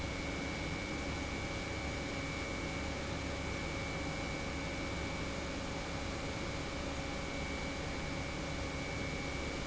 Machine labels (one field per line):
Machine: pump